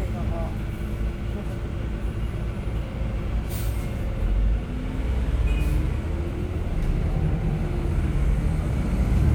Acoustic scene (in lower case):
bus